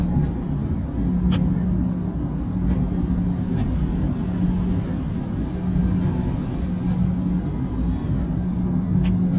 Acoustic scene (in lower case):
bus